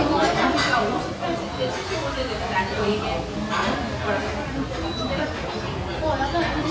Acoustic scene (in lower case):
restaurant